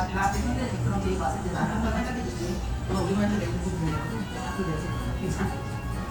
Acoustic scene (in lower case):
restaurant